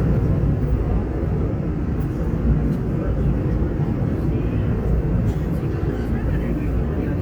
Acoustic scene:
subway train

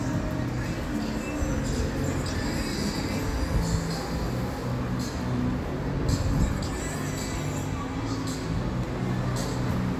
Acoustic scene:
street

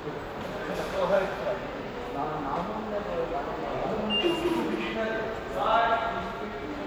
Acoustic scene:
subway station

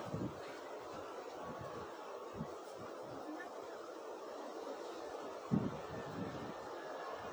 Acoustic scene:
residential area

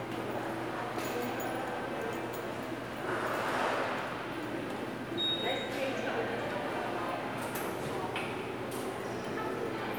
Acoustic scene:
subway station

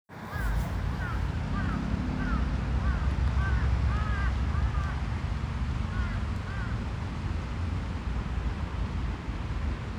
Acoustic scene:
residential area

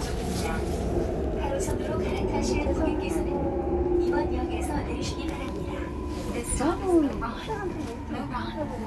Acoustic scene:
subway train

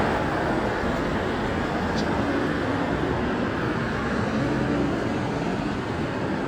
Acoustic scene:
street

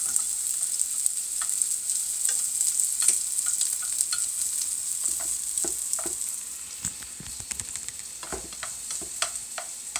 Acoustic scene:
kitchen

